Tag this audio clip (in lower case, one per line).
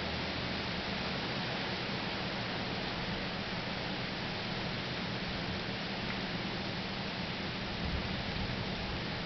rustling leaves